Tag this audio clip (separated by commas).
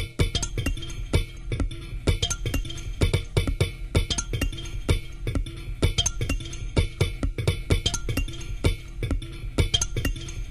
Music